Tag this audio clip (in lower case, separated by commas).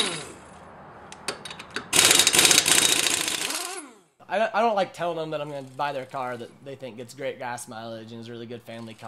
speech